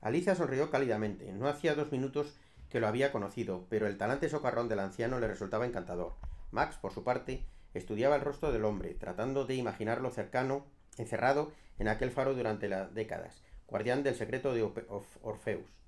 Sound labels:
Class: speech